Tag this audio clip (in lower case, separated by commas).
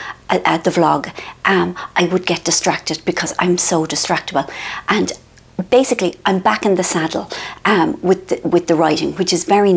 speech